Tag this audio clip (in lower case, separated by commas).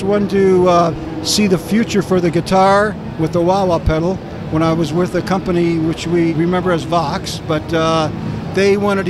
speech